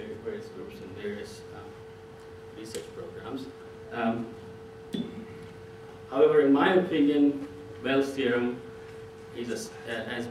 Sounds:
Speech

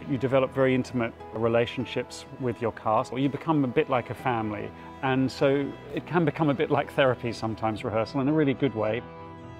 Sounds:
Speech, Music

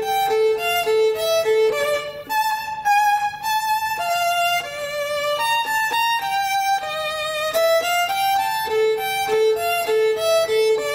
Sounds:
Musical instrument, fiddle, Music

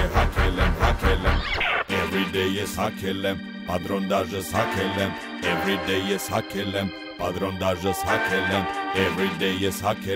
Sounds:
Music

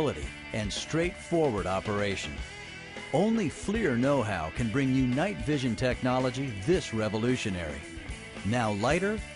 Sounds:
Music, Speech

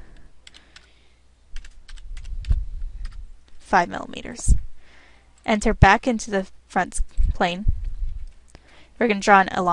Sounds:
inside a small room, Speech

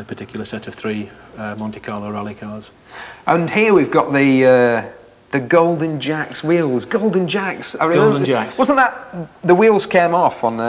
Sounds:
Speech, inside a large room or hall

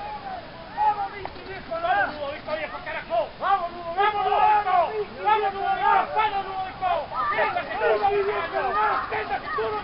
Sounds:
Speech

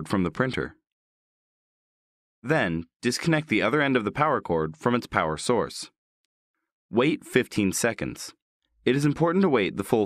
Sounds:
Speech

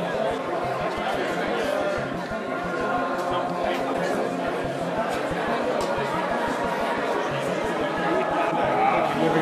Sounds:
outside, urban or man-made, Speech, Music

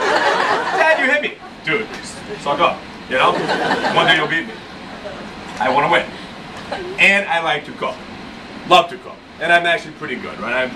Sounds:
Speech

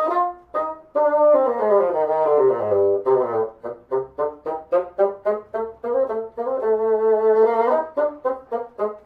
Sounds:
playing bassoon

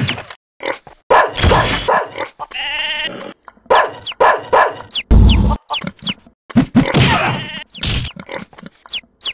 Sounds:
Bow-wow, Domestic animals, Yip, Whimper (dog), Animal, Dog

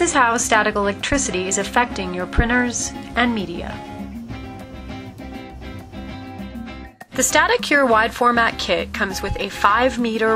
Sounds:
Music, Speech

